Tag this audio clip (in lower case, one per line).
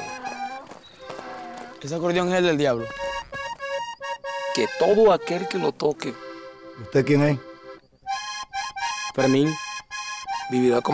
speech
music